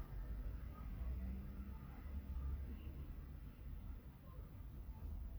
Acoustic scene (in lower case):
residential area